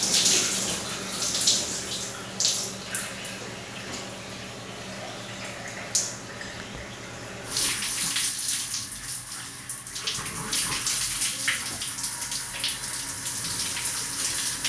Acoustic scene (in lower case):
restroom